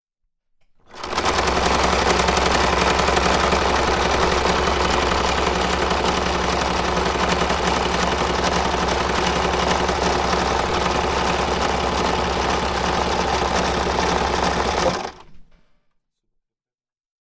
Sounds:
Engine, Mechanisms

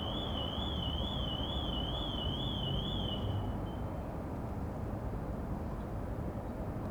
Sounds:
Alarm

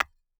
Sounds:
Tap, Tools, Hammer

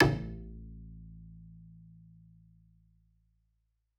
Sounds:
Music, Musical instrument, Bowed string instrument

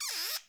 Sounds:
Squeak

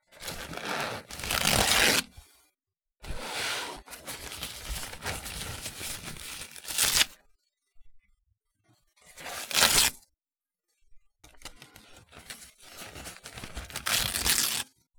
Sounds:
Tearing

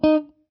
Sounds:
Music, Plucked string instrument, Musical instrument, Guitar

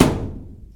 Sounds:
thud

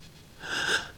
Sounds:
Respiratory sounds, Gasp, Breathing

